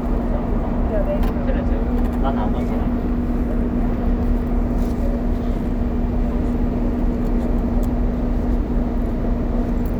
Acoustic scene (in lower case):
bus